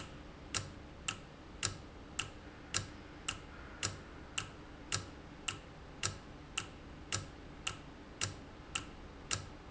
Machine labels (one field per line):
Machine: valve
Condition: normal